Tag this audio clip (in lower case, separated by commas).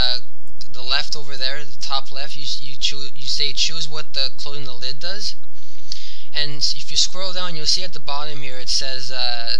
speech